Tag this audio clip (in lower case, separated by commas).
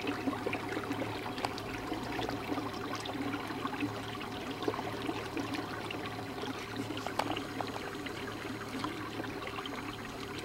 boat, vehicle